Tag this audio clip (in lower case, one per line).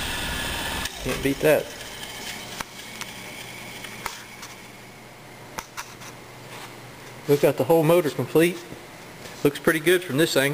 speech
engine